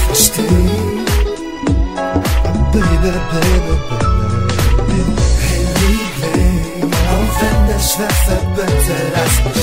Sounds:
pop music, music

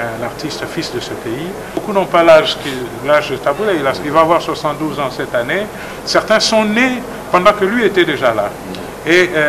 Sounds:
speech

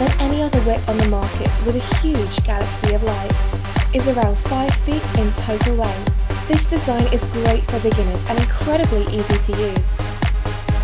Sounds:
music, speech

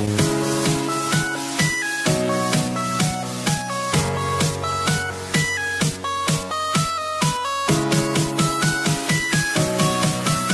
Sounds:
music

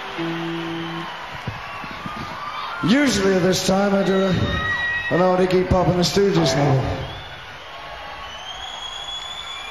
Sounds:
music, speech

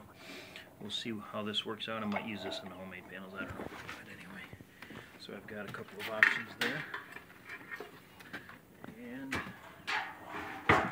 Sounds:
speech

